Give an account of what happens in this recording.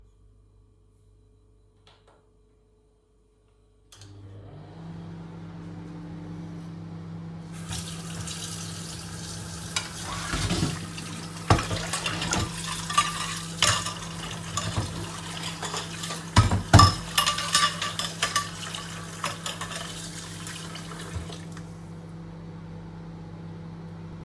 I started the microwave, then I turned on the water and washed the dishes.